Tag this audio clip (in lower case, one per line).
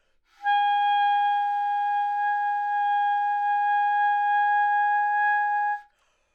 wind instrument
musical instrument
music